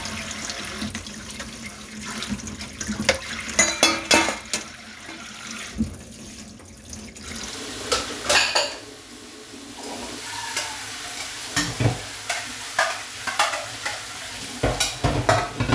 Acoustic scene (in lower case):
kitchen